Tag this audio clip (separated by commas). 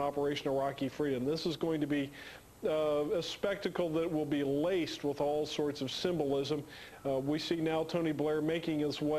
Narration, Male speech, Speech